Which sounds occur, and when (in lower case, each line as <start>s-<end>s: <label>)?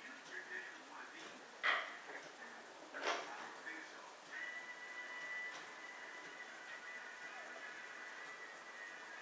0.0s-1.5s: man speaking
0.0s-9.2s: mechanisms
0.2s-0.3s: tick
0.7s-0.8s: tick
1.2s-1.4s: generic impact sounds
1.6s-1.9s: generic impact sounds
1.9s-2.7s: man speaking
2.2s-2.3s: generic impact sounds
2.9s-4.0s: man speaking
3.0s-3.3s: generic impact sounds
4.3s-9.2s: music
5.2s-5.3s: tick
5.5s-5.7s: tick
6.2s-6.4s: tick